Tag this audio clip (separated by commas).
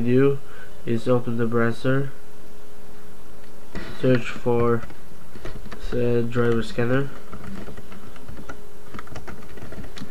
Speech, inside a small room